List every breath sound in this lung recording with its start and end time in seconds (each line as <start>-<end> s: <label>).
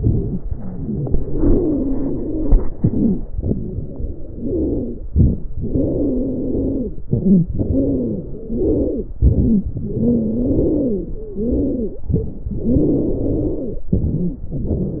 0.00-0.44 s: inhalation
0.00-0.44 s: wheeze
0.68-2.59 s: exhalation
0.68-2.59 s: wheeze
2.72-3.24 s: wheeze
2.77-3.36 s: inhalation
3.38-5.02 s: exhalation
3.38-5.02 s: wheeze
5.09-5.50 s: inhalation
5.09-5.50 s: crackles
5.59-7.02 s: exhalation
5.59-7.02 s: wheeze
7.09-7.49 s: inhalation
7.09-7.49 s: wheeze
7.54-9.09 s: exhalation
7.54-9.09 s: wheeze
9.20-9.68 s: inhalation
9.20-9.68 s: wheeze
9.77-12.03 s: exhalation
9.77-12.03 s: wheeze
9.77-12.03 s: wheeze
12.10-12.59 s: inhalation
12.10-12.59 s: wheeze
12.60-13.88 s: exhalation
12.60-13.88 s: wheeze
13.93-14.52 s: inhalation
13.93-14.52 s: wheeze
14.52-15.00 s: exhalation
14.52-15.00 s: wheeze